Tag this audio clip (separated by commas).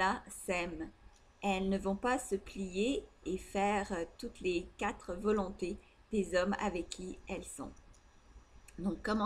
Speech